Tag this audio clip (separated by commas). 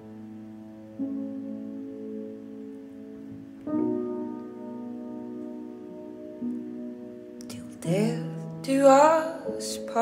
Music